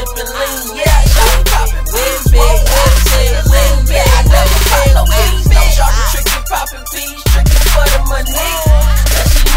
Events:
[0.00, 9.55] music
[0.00, 9.55] rapping

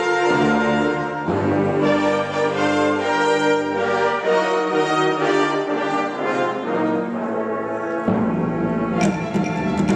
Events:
[0.01, 9.95] music

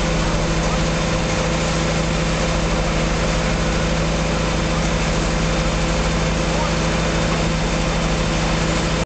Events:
[0.00, 9.04] pump (liquid)
[6.51, 6.85] man speaking

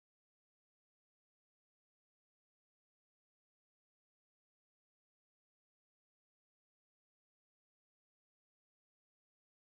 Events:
[0.00, 4.60] mechanisms
[0.04, 0.15] generic impact sounds
[0.25, 0.34] generic impact sounds
[0.46, 0.71] generic impact sounds
[0.90, 1.25] surface contact
[1.04, 1.18] generic impact sounds
[1.39, 1.54] generic impact sounds
[1.52, 1.93] surface contact
[2.08, 2.21] generic impact sounds
[2.27, 3.10] tick
[3.10, 3.16] generic impact sounds
[3.53, 3.77] tap
[3.84, 4.59] laughter
[4.40, 4.53] tick
[4.80, 9.64] mechanisms
[4.92, 6.29] man speaking
[6.48, 8.68] man speaking
[8.83, 8.97] tick
[8.97, 9.64] man speaking
[9.42, 9.57] generic impact sounds

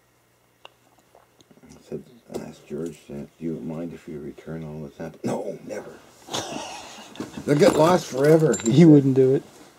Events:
[0.00, 9.75] background noise
[0.56, 0.65] generic impact sounds
[0.83, 1.00] generic impact sounds
[1.13, 1.58] generic impact sounds
[1.66, 5.93] male speech
[6.00, 7.43] laughter
[7.14, 7.40] generic impact sounds
[7.20, 9.44] male speech
[7.66, 7.76] generic impact sounds
[8.15, 8.83] generic impact sounds

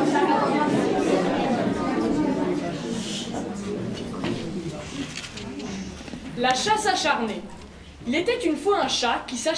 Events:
[0.00, 4.48] hubbub
[0.00, 9.55] mechanisms
[0.94, 1.22] surface contact
[1.92, 2.05] generic impact sounds
[2.77, 3.27] surface contact
[3.51, 3.68] generic impact sounds
[3.89, 4.06] generic impact sounds
[4.17, 4.90] man speaking
[4.19, 4.38] generic impact sounds
[4.77, 5.12] surface contact
[5.04, 5.42] camera
[5.29, 6.02] female speech
[5.55, 5.66] generic impact sounds
[5.63, 6.11] surface contact
[5.90, 6.20] generic impact sounds
[6.33, 7.40] child speech
[6.44, 6.54] generic impact sounds
[6.57, 7.96] human voice
[7.22, 7.72] generic impact sounds
[8.03, 9.55] child speech
[9.22, 9.31] generic impact sounds

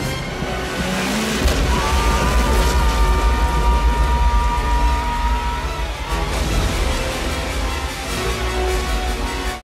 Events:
[0.01, 9.61] music
[0.74, 6.21] boat
[0.91, 2.71] explosion
[1.91, 5.58] screaming
[5.93, 7.71] water

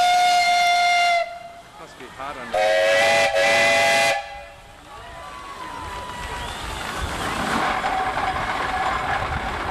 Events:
[0.00, 9.70] motor vehicle (road)
[1.63, 2.54] man speaking
[2.52, 4.43] steam whistle
[4.87, 7.38] cheering
[4.95, 7.77] clapping
[6.21, 7.27] whistling

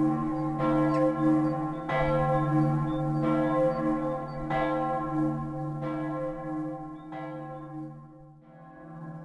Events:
[0.00, 9.24] change ringing (campanology)
[0.28, 0.94] chirp
[0.83, 1.02] generic impact sounds
[1.11, 1.50] chirp
[1.65, 2.10] chirp
[2.25, 2.68] chirp
[2.83, 3.21] chirp
[3.39, 3.78] chirp
[3.94, 4.35] chirp
[6.85, 7.64] chirp

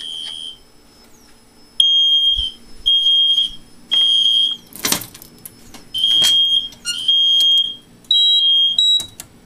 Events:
[0.00, 0.53] alarm
[0.00, 9.45] mechanisms
[0.17, 0.31] generic impact sounds
[0.38, 1.06] brief tone
[0.81, 1.07] surface contact
[1.19, 1.35] generic impact sounds
[1.32, 2.11] brief tone
[1.75, 2.59] alarm
[2.38, 2.92] brief tone
[2.53, 2.86] surface contact
[2.85, 3.58] alarm
[3.48, 3.96] brief tone
[3.86, 4.57] alarm
[3.90, 4.03] generic impact sounds
[4.42, 4.54] generic impact sounds
[4.70, 5.49] generic impact sounds
[5.04, 5.64] brief tone
[5.50, 5.66] surface contact
[5.68, 5.82] generic impact sounds
[5.79, 6.04] brief tone
[5.94, 6.67] alarm
[6.02, 6.36] generic impact sounds
[6.65, 6.78] generic impact sounds
[6.89, 7.67] alarm
[7.37, 7.60] generic impact sounds
[7.98, 8.08] tick
[8.08, 8.38] beep
[8.11, 8.77] alarm
[8.52, 8.78] generic impact sounds
[8.75, 9.09] beep
[8.90, 9.27] generic impact sounds

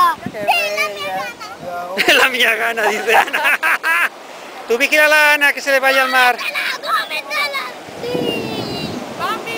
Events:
[0.00, 9.55] waves
[0.00, 9.55] wind
[3.31, 4.05] laughter
[4.68, 6.49] man speaking
[8.02, 8.92] kid speaking
[9.19, 9.55] woman speaking

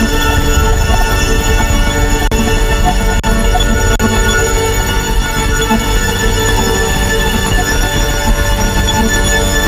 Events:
[0.00, 9.65] music

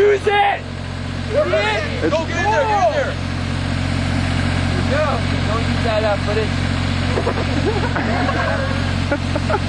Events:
[0.00, 0.57] man speaking
[0.00, 9.65] car
[1.25, 3.18] man speaking
[4.87, 5.18] man speaking
[5.44, 6.52] man speaking
[7.13, 8.99] engine starting
[9.14, 9.60] giggle

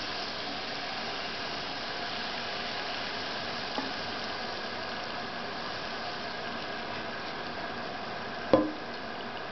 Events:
[0.00, 9.51] mechanisms
[3.70, 3.84] generic impact sounds
[8.50, 8.75] generic impact sounds

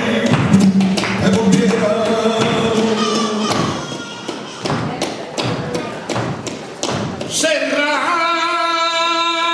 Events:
[0.00, 3.79] music
[2.91, 7.31] human voice
[6.81, 7.11] tap dance
[7.14, 7.26] generic impact sounds
[7.24, 9.53] male singing

